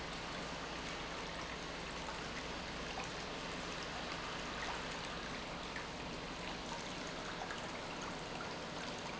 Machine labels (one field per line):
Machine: pump